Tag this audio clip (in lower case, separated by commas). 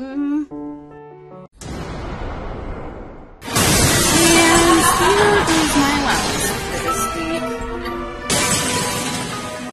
music, speech